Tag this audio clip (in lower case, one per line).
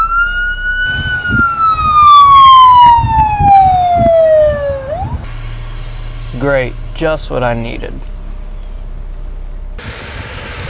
siren
emergency vehicle
police car (siren)